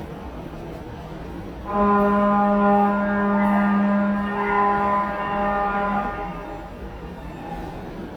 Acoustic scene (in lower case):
subway station